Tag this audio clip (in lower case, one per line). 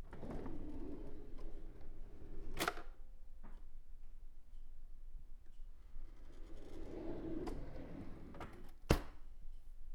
domestic sounds
drawer open or close